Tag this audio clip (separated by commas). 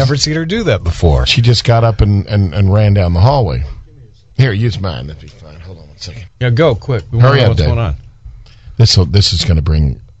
Speech